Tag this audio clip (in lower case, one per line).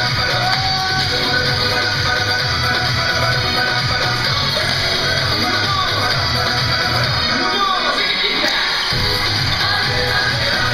inside a large room or hall
music